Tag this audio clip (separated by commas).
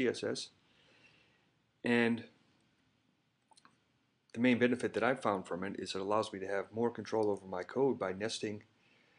Speech